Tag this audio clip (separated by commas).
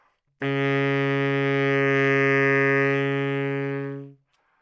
Musical instrument, woodwind instrument, Music